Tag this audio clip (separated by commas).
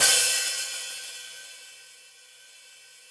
Music, Musical instrument, Hi-hat, Percussion, Cymbal